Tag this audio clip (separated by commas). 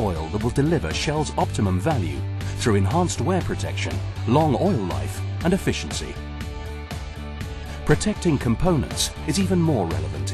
Speech, Music